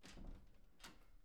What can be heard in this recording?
wooden door opening